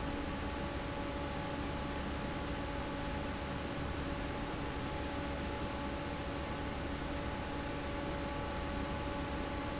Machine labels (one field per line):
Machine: fan